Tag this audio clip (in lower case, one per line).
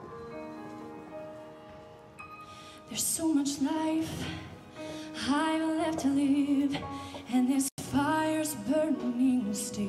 music